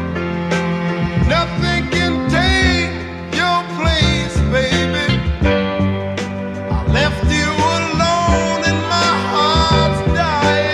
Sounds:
music

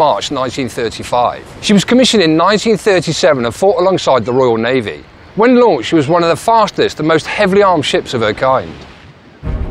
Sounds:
speech

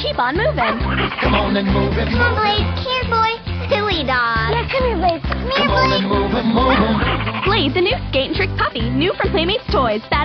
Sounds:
music
music for children
speech

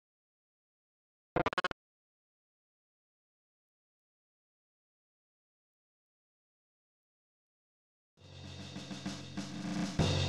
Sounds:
music
silence

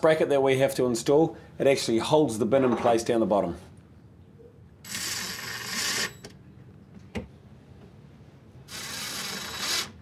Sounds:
inside a small room
speech

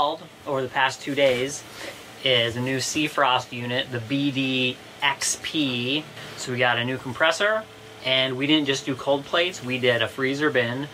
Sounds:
speech

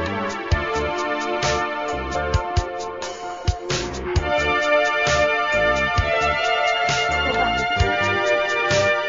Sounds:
music

